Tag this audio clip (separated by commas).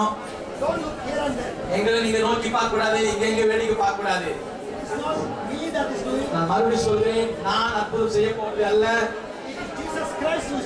Speech